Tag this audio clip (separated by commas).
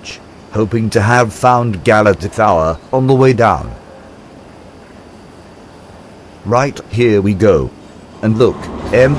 Speech